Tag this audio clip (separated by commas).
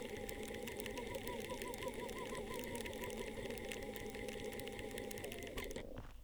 Mechanisms